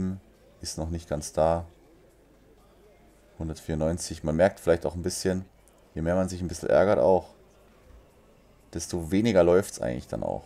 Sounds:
playing darts

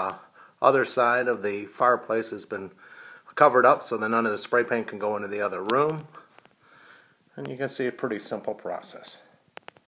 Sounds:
speech

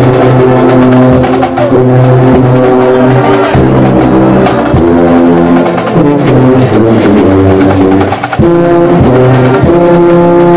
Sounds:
music, musical instrument

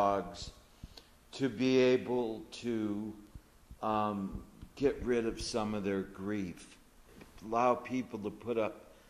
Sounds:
speech

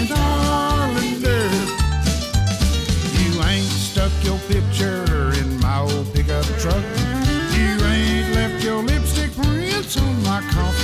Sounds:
music

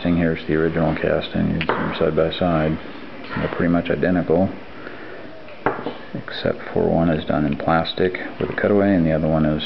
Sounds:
speech

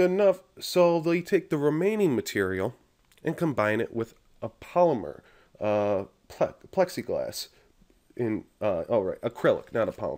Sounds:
speech

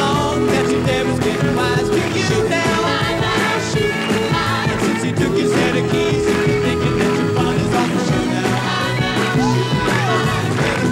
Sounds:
music

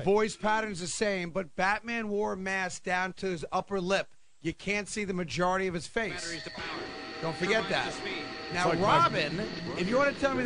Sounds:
speech

